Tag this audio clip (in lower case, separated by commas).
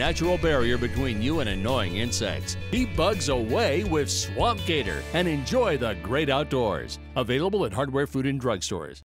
speech, music